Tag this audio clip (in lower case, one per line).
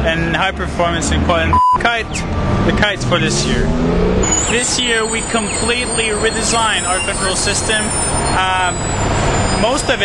speech